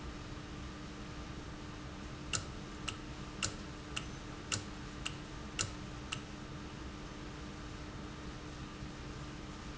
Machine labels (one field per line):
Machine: valve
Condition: normal